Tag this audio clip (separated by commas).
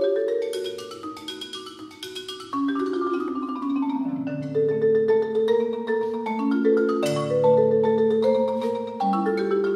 Music, xylophone